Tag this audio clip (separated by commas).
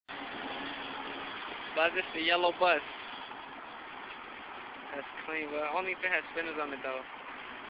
Speech